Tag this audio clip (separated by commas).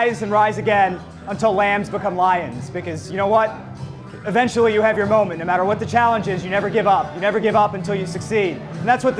man speaking, monologue, Music, Speech